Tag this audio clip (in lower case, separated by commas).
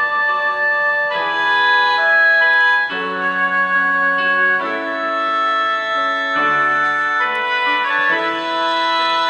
music